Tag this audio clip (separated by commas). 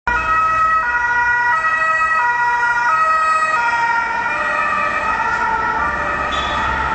Ambulance (siren), Emergency vehicle, Siren